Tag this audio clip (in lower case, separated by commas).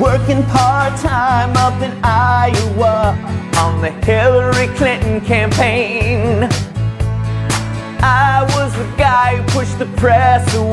music